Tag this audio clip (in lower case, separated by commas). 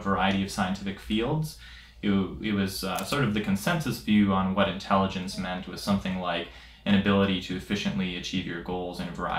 speech